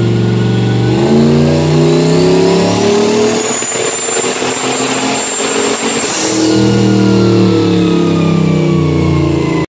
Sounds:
engine, vehicle

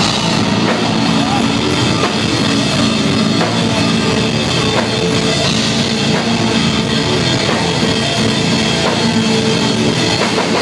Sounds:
music

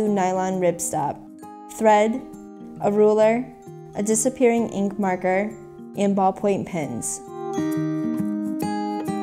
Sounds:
speech, music

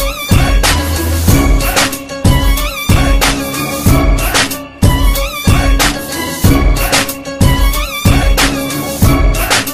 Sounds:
disco, music, rhythm and blues

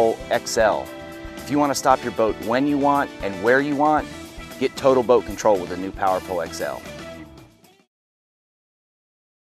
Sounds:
music, speech

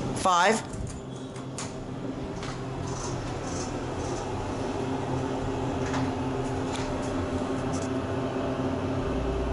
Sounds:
speech

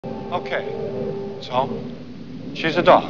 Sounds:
speech

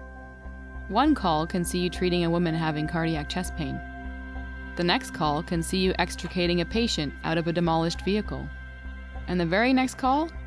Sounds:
speech, music

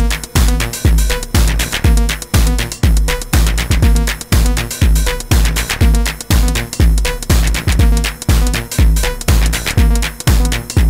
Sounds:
synthesizer, playing synthesizer, musical instrument, music, drum machine

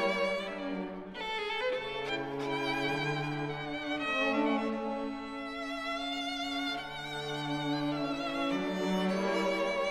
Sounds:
musical instrument, music, classical music, cello, orchestra, bowed string instrument, violin

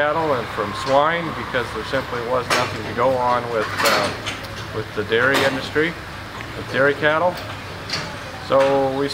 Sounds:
speech

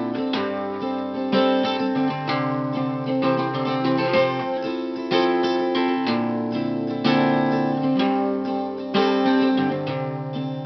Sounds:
guitar, acoustic guitar, musical instrument, music

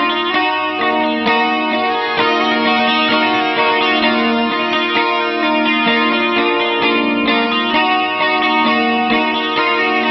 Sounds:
electric guitar, music

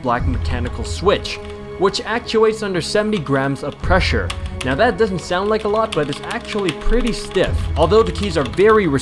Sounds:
computer keyboard, typing, music, speech

